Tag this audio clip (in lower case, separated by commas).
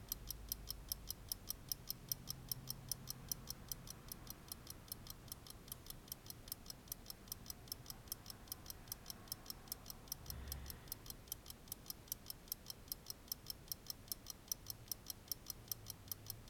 clock, mechanisms